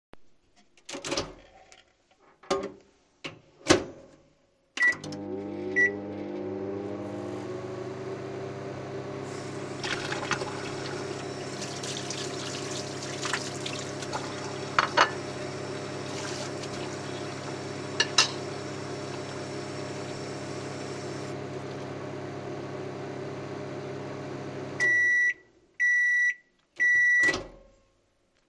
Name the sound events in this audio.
microwave, cutlery and dishes, running water